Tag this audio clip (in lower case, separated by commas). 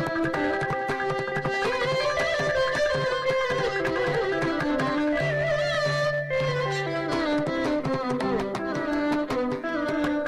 musical instrument, music, carnatic music, traditional music, classical music